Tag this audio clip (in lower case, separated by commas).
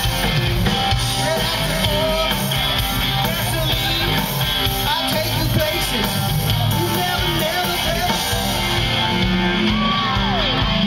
music, male singing